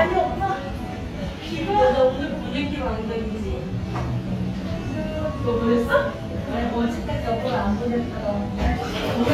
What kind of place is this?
cafe